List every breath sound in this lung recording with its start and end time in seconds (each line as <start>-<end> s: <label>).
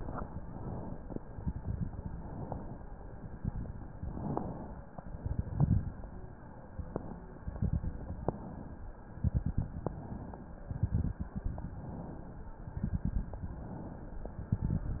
0.22-1.15 s: inhalation
1.22-2.04 s: exhalation
1.22-2.04 s: crackles
2.05-2.98 s: inhalation
3.03-3.85 s: exhalation
3.03-3.85 s: crackles
3.94-4.87 s: inhalation
5.00-5.82 s: exhalation
5.00-5.82 s: crackles
6.79-7.38 s: inhalation
7.39-8.21 s: exhalation
7.39-8.21 s: crackles
8.28-8.96 s: inhalation
9.15-9.96 s: exhalation
9.15-9.96 s: crackles
9.97-10.66 s: inhalation
10.69-11.50 s: exhalation
10.69-11.50 s: crackles
11.54-12.51 s: inhalation
12.69-13.51 s: exhalation
12.69-13.51 s: crackles
13.50-14.32 s: inhalation
14.39-15.00 s: exhalation
14.39-15.00 s: crackles